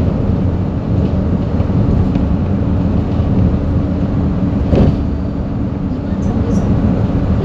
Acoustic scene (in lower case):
bus